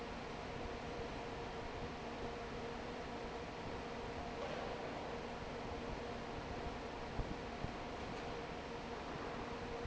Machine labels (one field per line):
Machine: fan